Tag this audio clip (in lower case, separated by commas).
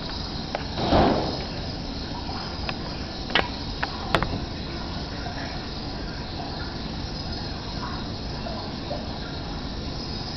animal, outside, rural or natural